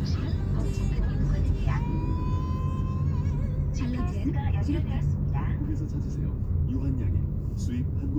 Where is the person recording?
in a car